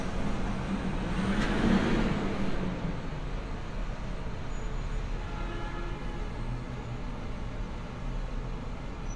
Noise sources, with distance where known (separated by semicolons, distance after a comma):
large-sounding engine, near; car horn